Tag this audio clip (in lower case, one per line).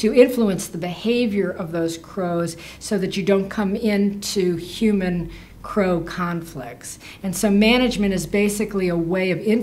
speech